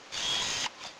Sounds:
Camera, Mechanisms

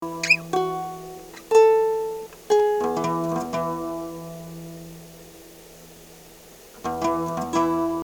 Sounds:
Plucked string instrument, Acoustic guitar, Musical instrument, Music, Guitar

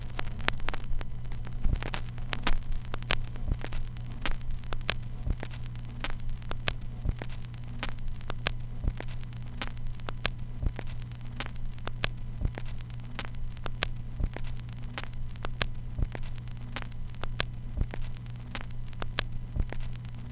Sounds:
Crackle

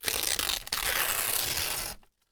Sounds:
Tearing

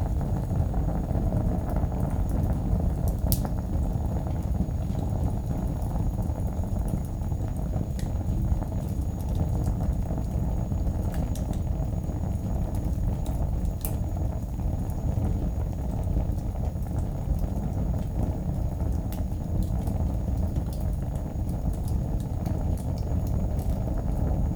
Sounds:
Fire

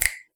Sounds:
Finger snapping, Hands

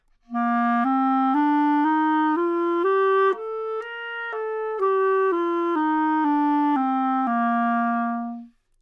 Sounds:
Wind instrument, Musical instrument, Music

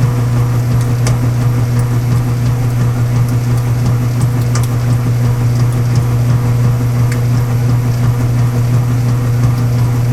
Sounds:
Engine

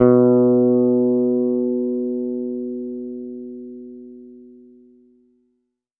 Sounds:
Musical instrument, Plucked string instrument, Guitar, Music, Bass guitar

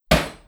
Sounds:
Tools, Hammer

